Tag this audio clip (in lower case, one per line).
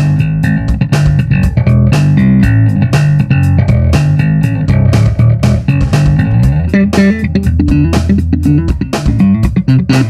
plucked string instrument
music
guitar
musical instrument